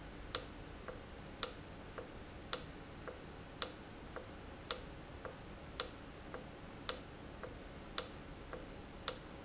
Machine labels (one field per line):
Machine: valve